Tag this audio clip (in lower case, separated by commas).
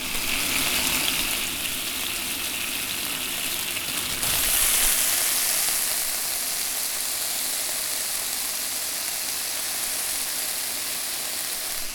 home sounds, frying (food)